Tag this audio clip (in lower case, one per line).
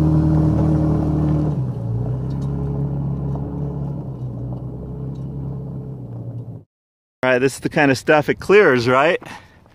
speech
truck
outside, rural or natural
vehicle